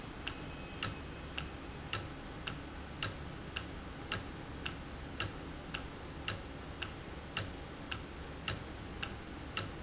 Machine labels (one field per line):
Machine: valve